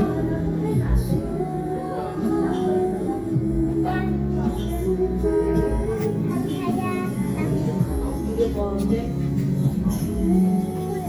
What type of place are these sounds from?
crowded indoor space